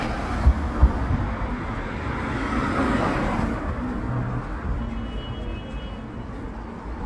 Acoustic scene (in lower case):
street